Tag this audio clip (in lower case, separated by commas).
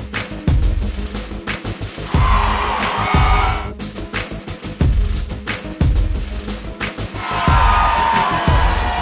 music, cheering